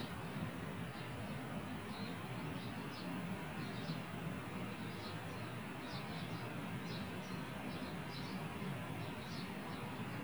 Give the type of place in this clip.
park